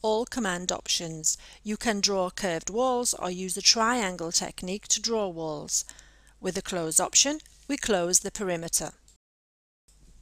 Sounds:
speech

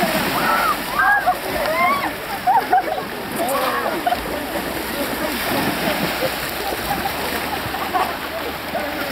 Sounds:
splashing water

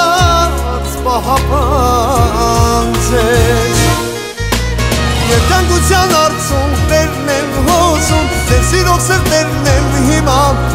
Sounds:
music

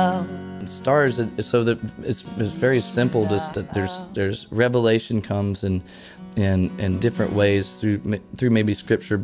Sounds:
speech
music

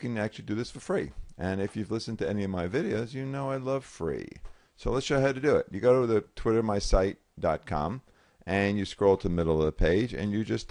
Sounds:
speech

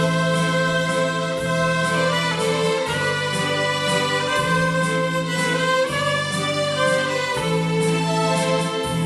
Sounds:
music
bowed string instrument
violin
musical instrument

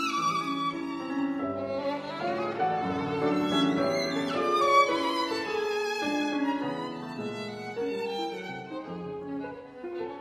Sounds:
musical instrument
music
violin

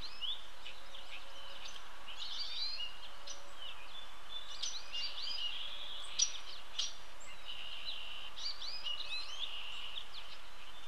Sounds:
baltimore oriole calling

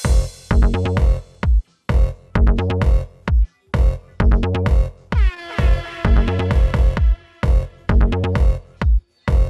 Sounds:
music

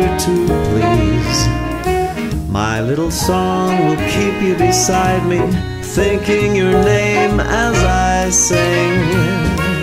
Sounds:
pop music
drum kit
musical instrument
music
drum
christmas music

